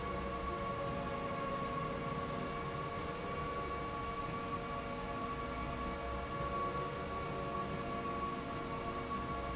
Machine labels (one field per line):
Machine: slide rail